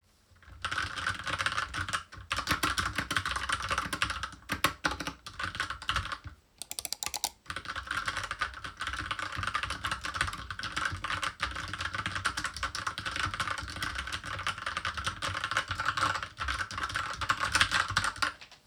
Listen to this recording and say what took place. I typed on my keyboard. Then I clicked on my mouse a few times. After that I typed again.